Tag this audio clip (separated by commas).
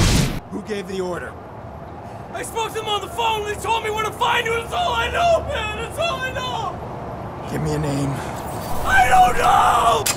Speech